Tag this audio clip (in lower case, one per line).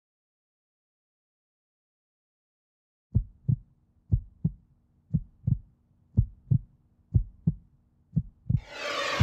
pulse
music